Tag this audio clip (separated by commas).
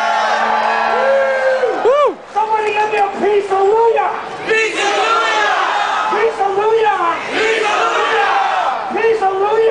Battle cry, Crowd